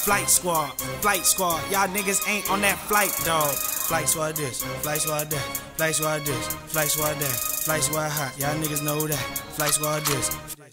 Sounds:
Music, Pop music

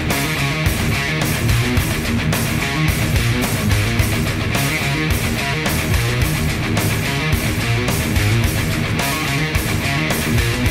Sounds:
Music, Plucked string instrument, Musical instrument, Guitar

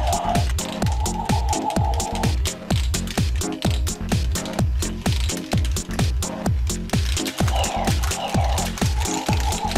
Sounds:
Electronic music, Techno, Music

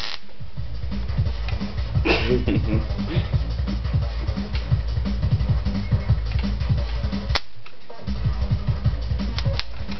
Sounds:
Music

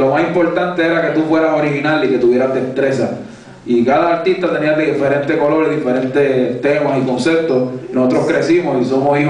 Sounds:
Speech

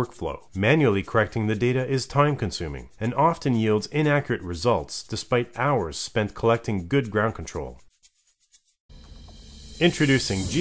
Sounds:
Speech, Music

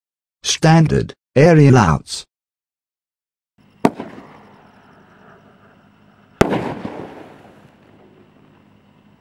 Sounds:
Speech, Fireworks

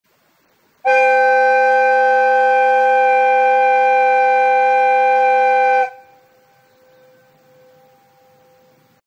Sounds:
train horning, Train horn

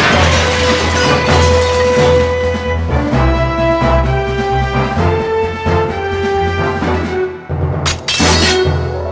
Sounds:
Music

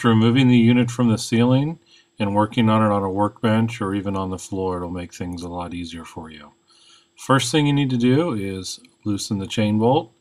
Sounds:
Speech

